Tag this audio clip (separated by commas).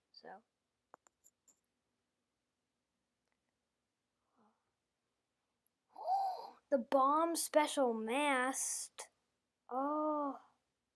Speech